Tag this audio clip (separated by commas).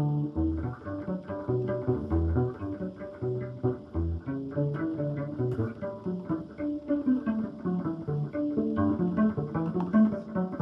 Musical instrument, Music